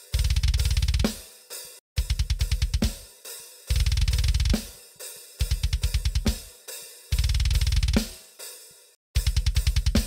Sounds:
playing double bass

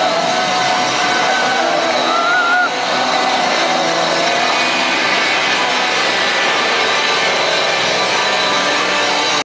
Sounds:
music

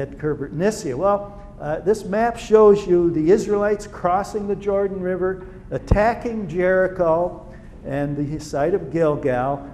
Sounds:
speech

